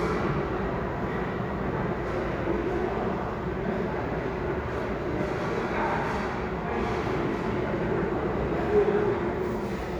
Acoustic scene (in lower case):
restaurant